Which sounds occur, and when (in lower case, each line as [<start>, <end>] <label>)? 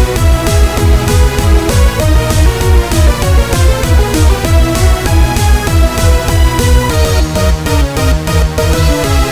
[0.00, 9.31] music